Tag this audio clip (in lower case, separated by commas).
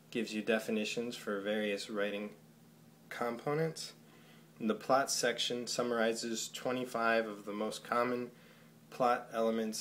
speech